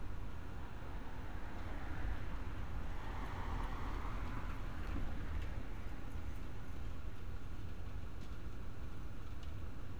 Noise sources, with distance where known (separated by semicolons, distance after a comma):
medium-sounding engine, far